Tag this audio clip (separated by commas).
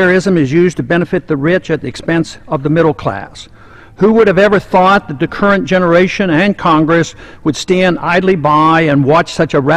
Male speech, Speech